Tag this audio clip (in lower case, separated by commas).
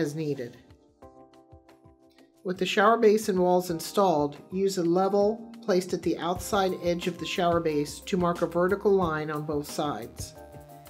speech, music